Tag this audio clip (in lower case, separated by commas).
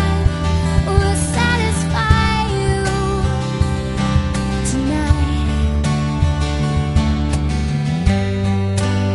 music, blues